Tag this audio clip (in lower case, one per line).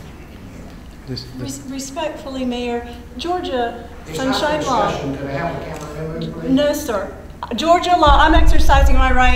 speech